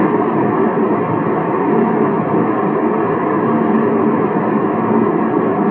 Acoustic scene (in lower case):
car